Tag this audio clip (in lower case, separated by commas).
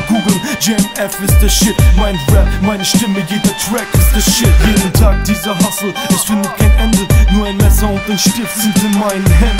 music